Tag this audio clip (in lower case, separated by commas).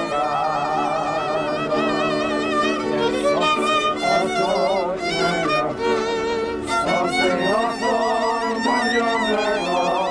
choir, male singing, music